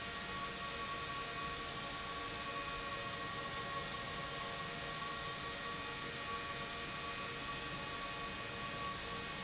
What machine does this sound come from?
pump